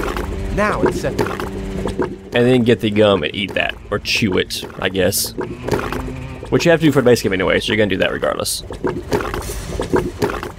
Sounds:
speech
music

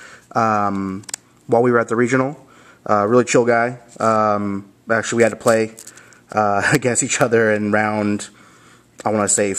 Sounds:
speech

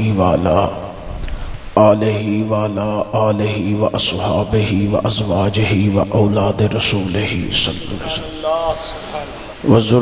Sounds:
speech

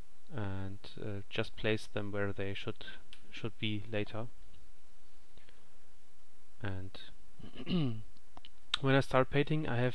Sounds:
speech

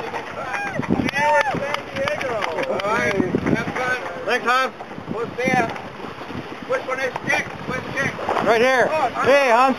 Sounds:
sailing ship
water vehicle
wind
wind noise (microphone)

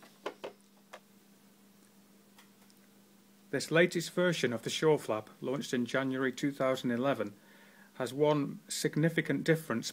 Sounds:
speech

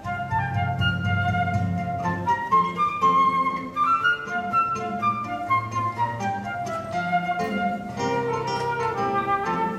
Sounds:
music
musical instrument
guitar
strum

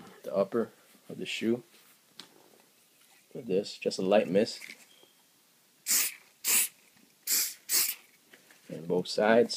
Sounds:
speech
inside a small room

